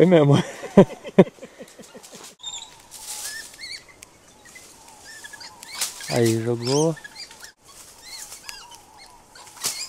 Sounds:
bird call, outside, rural or natural, animal, speech

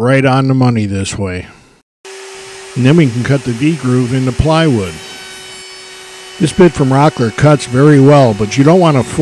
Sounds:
speech

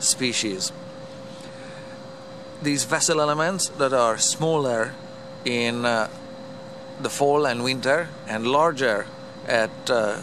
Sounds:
speech

